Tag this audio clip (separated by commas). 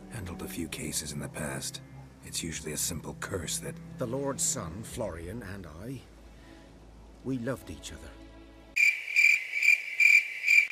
Music, Speech, outside, rural or natural